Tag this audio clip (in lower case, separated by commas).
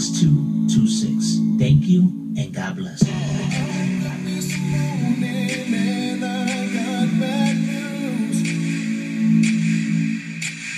music, speech